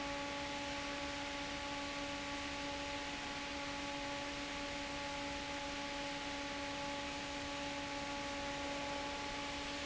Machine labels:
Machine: fan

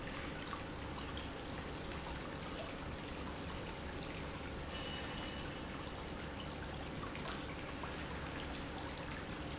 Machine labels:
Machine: pump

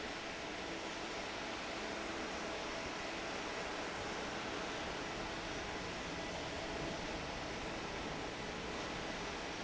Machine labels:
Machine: fan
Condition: normal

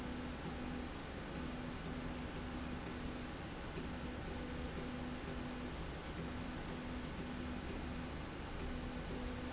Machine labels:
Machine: slide rail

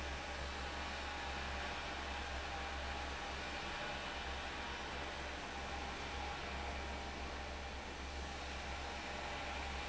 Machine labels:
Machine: fan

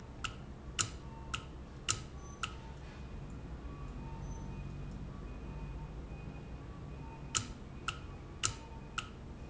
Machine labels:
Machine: valve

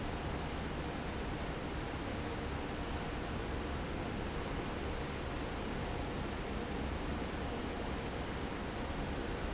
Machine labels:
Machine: fan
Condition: normal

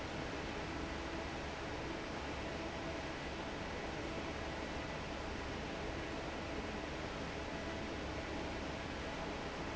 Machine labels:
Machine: fan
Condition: normal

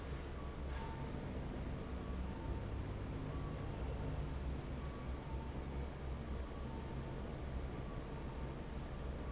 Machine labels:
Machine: fan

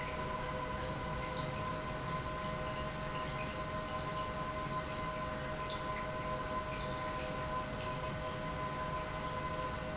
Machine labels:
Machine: pump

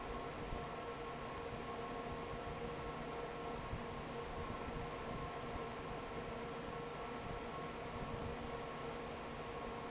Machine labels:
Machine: fan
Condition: normal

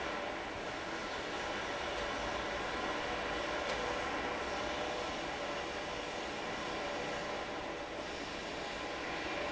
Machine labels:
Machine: fan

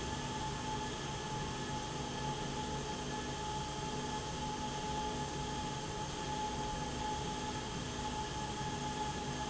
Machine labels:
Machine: slide rail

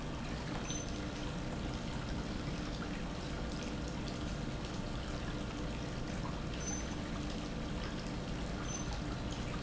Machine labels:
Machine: pump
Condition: normal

